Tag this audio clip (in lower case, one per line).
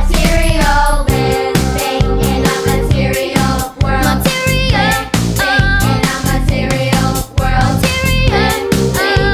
music
singing
pop music